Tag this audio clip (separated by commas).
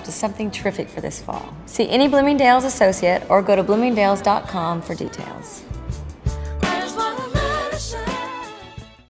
Speech, Music